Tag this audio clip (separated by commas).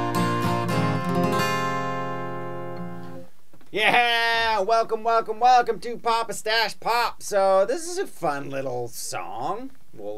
Musical instrument, Music, Speech, Acoustic guitar, Strum, Guitar, Plucked string instrument